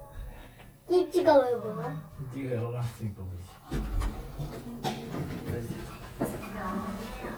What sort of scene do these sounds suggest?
elevator